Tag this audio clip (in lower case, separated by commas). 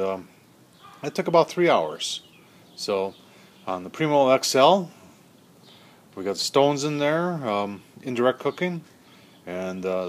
speech